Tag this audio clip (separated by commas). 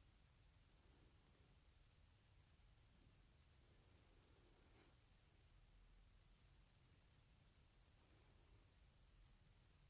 owl hooting